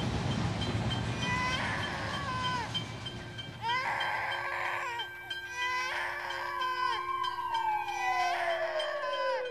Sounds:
vehicle

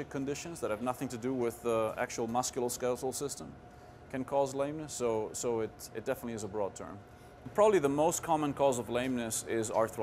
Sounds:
speech

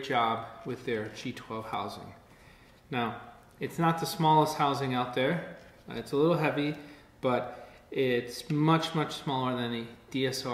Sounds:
speech

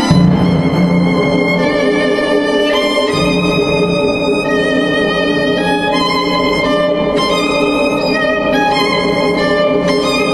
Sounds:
musical instrument
violin
music

